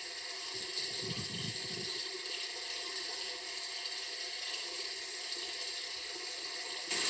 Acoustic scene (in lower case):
restroom